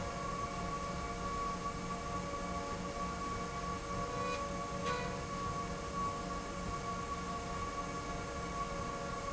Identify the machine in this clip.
slide rail